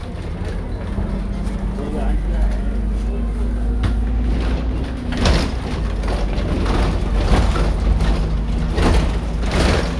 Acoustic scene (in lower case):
bus